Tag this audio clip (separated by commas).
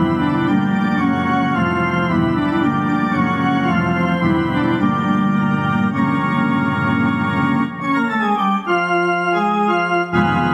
Music